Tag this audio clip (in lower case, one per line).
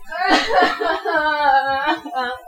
human voice
crying